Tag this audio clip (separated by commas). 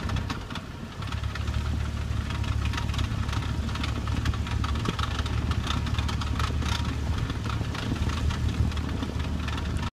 White noise